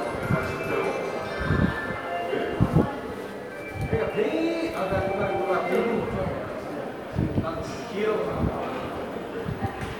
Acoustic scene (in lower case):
subway station